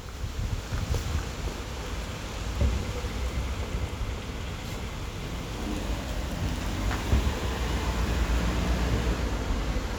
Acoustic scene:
street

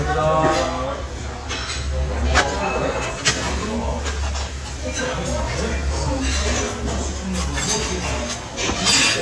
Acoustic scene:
crowded indoor space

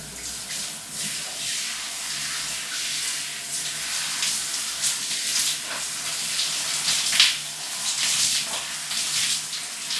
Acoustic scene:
restroom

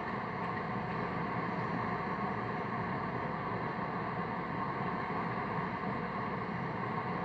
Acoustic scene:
street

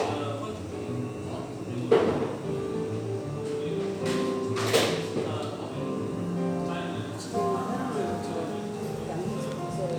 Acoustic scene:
cafe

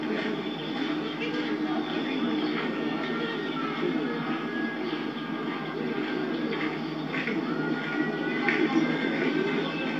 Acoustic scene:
park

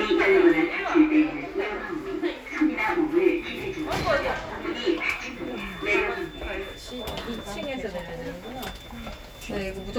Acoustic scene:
elevator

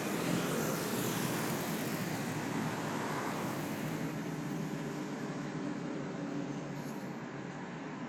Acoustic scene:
street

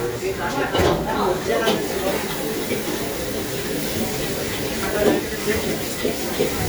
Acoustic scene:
restaurant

